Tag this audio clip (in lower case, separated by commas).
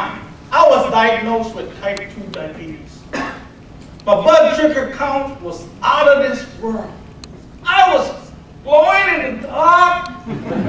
speech, man speaking